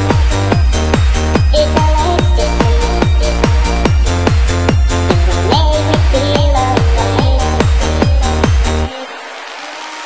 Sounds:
techno, music

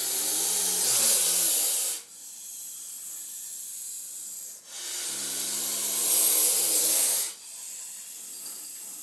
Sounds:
snake hissing

